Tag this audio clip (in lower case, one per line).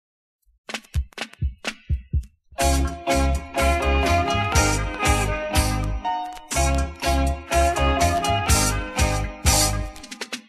music